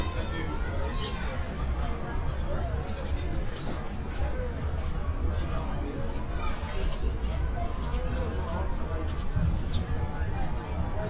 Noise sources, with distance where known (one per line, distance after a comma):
person or small group talking, near